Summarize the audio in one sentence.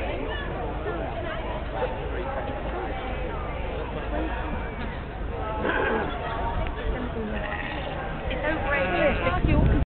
Various people talking and animal noises towards end